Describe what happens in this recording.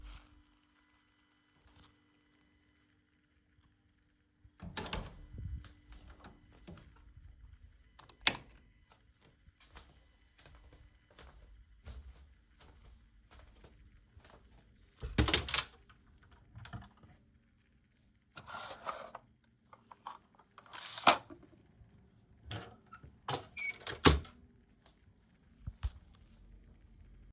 I opened the door, turned on the light, then I open the drawer and took something from it, then I closed the drawer.